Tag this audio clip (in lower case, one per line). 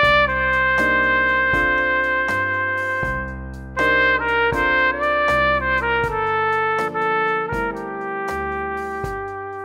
music
musical instrument